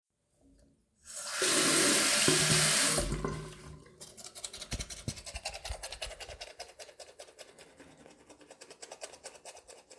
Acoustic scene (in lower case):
restroom